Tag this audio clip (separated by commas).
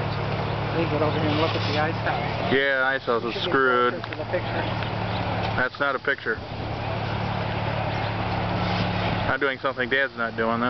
Speech, Vehicle